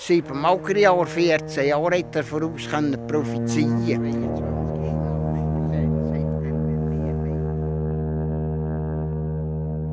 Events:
0.0s-7.5s: male speech
0.0s-9.9s: music

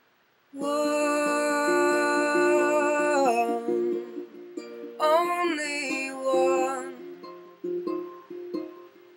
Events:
0.0s-9.1s: background noise
0.5s-4.3s: child singing
0.6s-9.1s: music
5.0s-7.1s: child singing

